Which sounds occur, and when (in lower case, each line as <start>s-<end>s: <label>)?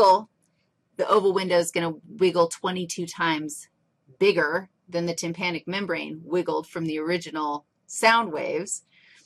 0.0s-0.2s: female speech
0.0s-9.2s: background noise
0.4s-0.7s: generic impact sounds
0.9s-1.9s: female speech
2.1s-3.6s: female speech
4.1s-4.7s: female speech
4.8s-7.6s: female speech
7.9s-8.8s: female speech
8.8s-9.2s: breathing